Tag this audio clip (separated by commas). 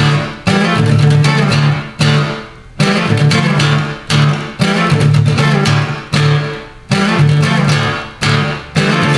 Acoustic guitar, Musical instrument, Guitar, Music